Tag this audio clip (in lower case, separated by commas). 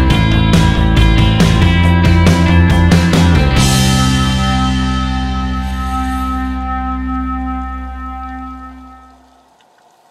music